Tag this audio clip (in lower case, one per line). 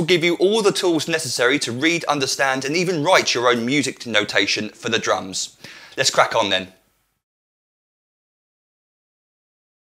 speech